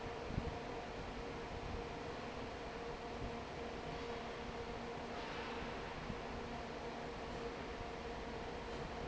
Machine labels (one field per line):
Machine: fan